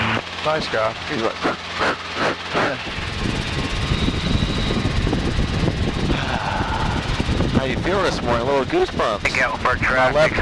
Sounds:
helicopter
airplane
vehicle

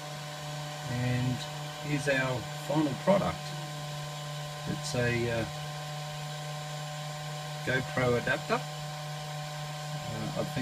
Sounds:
speech

